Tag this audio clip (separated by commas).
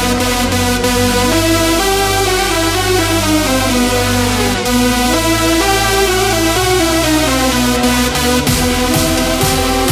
Music